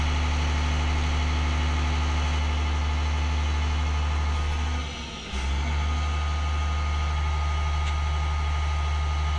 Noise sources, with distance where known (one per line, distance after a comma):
large-sounding engine, near